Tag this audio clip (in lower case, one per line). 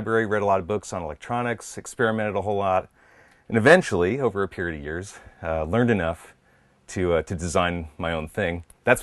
speech